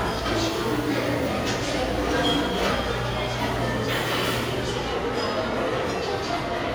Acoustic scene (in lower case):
restaurant